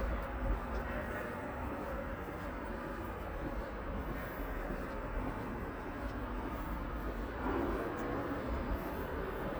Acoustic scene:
residential area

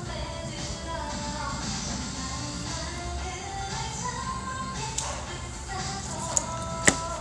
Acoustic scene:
restaurant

